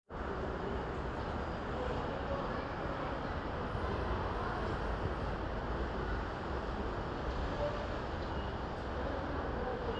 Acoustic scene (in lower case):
residential area